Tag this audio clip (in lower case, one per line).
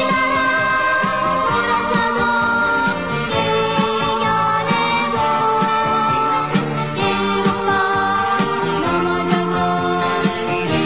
music